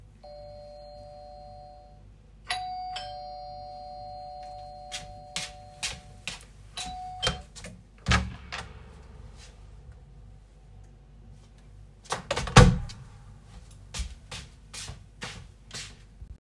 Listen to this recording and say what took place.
I heard doorbell ringing, I went to the door, opened it and after closed